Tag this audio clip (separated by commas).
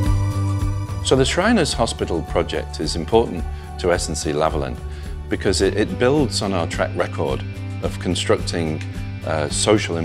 Music, Speech